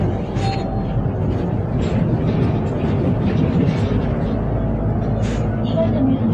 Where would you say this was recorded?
on a bus